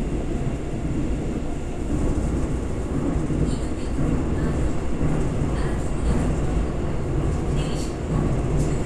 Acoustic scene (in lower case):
subway train